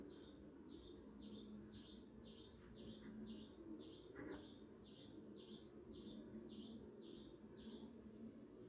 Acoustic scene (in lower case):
park